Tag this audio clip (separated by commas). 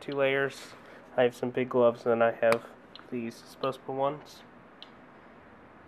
Speech